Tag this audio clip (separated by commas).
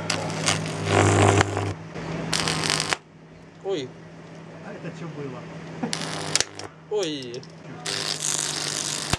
Speech, outside, rural or natural